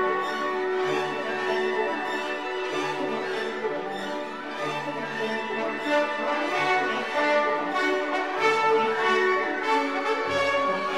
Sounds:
music

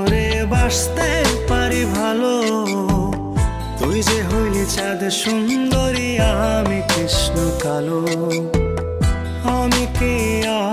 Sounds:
music

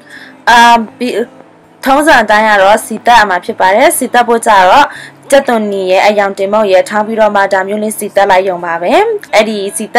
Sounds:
speech

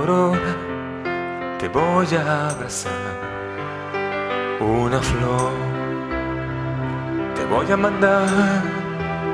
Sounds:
music

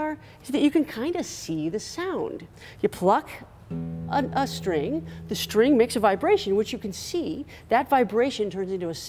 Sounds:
music
speech

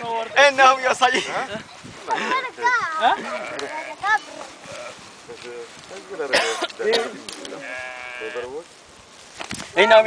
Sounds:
speech
animal
domestic animals
sheep

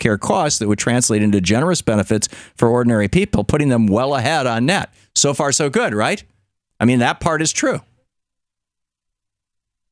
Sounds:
speech

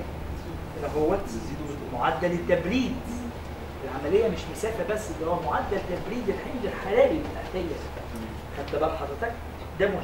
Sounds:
speech

